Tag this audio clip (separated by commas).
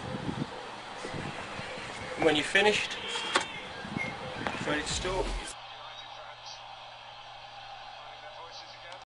Speech